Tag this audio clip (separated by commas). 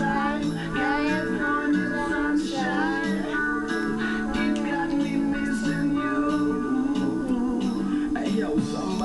Music